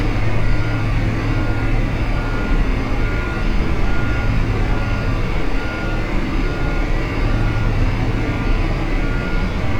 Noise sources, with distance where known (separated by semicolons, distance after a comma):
reverse beeper